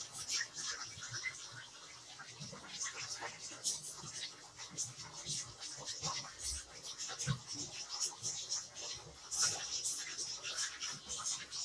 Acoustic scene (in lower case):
kitchen